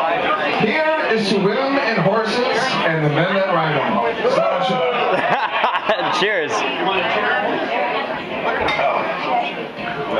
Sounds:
Speech

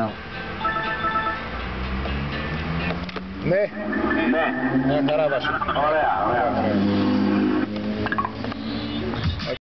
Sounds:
Car, Speech, Vehicle

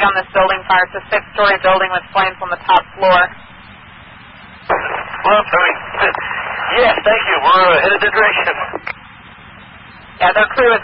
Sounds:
Crackle, Speech

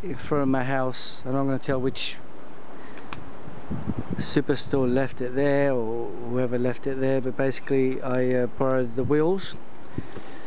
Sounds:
Speech

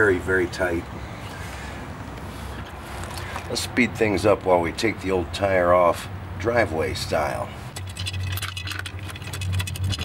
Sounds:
Speech

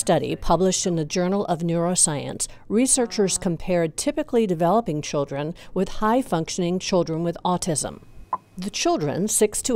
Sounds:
Speech

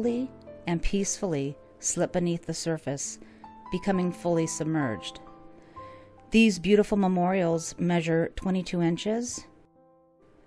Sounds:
Music, Speech

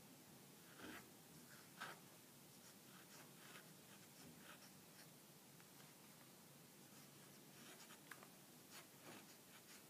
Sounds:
Writing, inside a small room

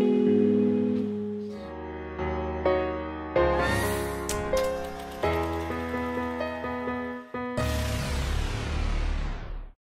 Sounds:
Music, Guitar

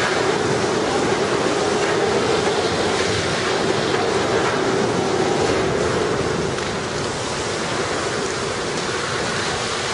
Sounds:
Fire

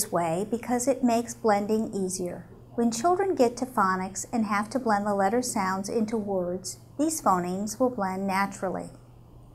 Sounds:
Speech

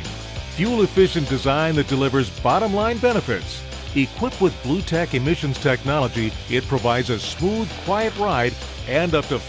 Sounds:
Music, Speech

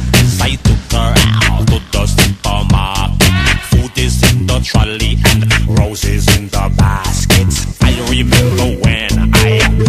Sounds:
Music

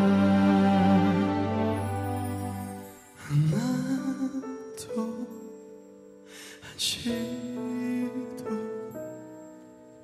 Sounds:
Music

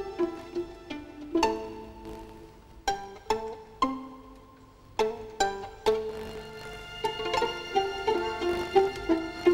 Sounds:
Bowed string instrument, Music, fiddle, Musical instrument

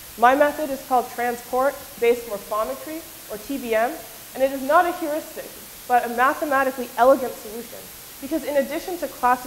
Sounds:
Speech

